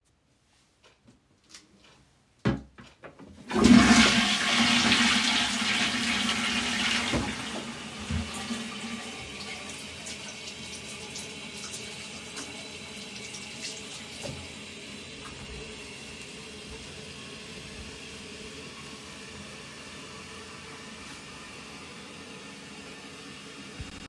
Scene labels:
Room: bathroom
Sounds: toilet flushing, running water

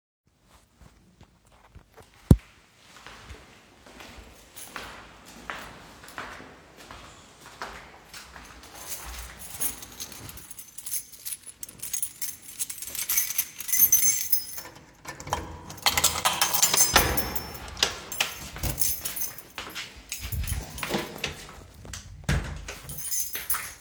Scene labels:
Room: hallway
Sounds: footsteps, keys, door (more than once)

